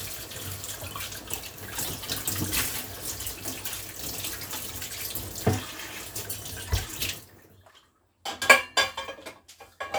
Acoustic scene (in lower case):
kitchen